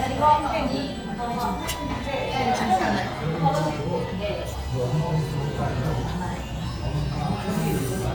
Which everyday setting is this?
restaurant